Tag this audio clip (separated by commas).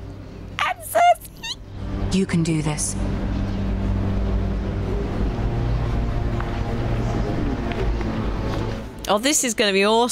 Music, Speech